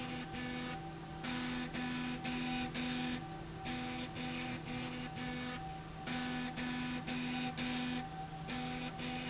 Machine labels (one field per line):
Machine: slide rail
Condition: abnormal